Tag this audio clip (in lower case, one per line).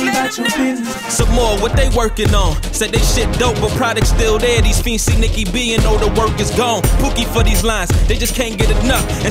music
rhythm and blues
dance music